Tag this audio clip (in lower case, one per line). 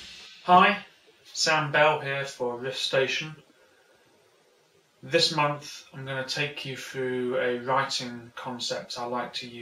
speech